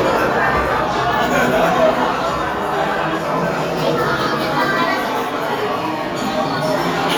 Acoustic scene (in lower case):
restaurant